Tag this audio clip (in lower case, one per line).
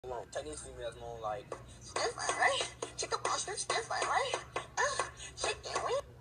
music
speech